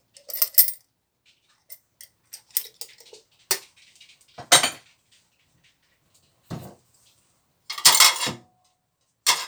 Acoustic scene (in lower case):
kitchen